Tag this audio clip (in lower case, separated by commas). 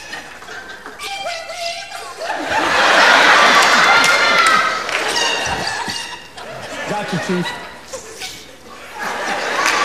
laughter